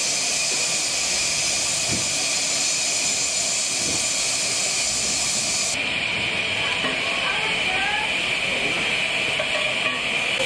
Steam loudly hisses